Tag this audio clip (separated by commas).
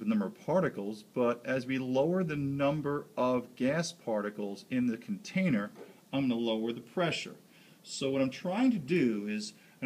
Speech